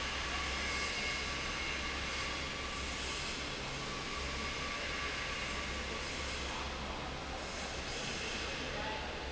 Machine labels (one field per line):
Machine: fan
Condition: normal